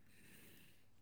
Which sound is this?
furniture moving